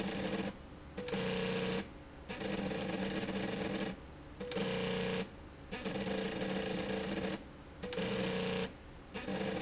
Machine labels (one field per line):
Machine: slide rail